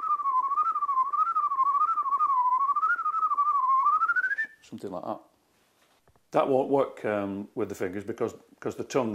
Rapid whistling before a man speaks